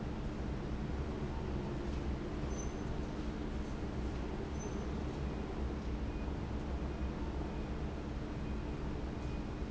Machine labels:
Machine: fan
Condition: abnormal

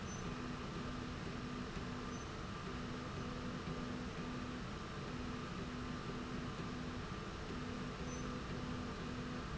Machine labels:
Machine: slide rail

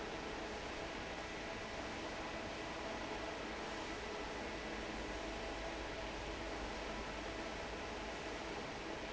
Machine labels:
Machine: fan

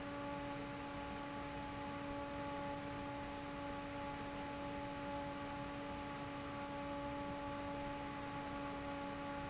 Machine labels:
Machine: fan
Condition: normal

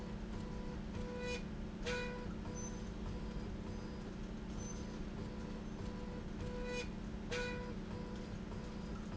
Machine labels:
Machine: slide rail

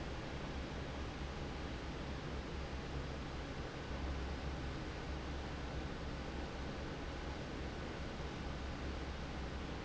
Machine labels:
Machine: fan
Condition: normal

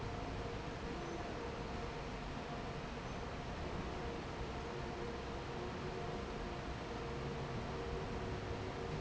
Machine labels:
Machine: fan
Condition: normal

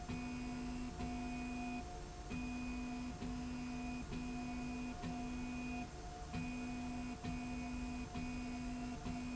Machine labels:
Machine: slide rail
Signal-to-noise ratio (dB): 6 dB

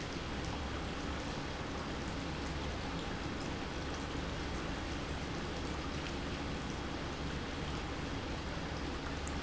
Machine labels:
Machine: pump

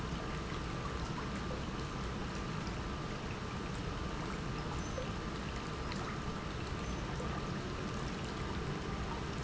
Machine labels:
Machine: pump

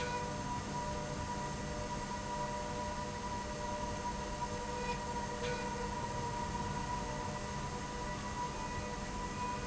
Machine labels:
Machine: slide rail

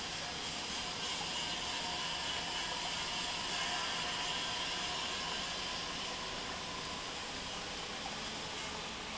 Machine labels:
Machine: pump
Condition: normal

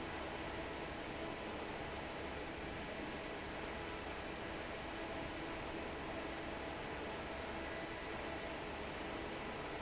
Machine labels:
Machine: fan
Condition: normal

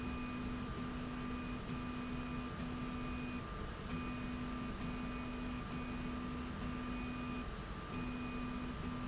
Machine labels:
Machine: slide rail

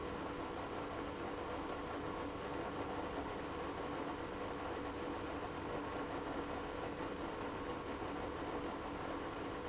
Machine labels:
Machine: pump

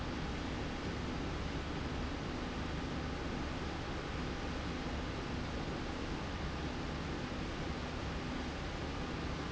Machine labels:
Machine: slide rail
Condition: normal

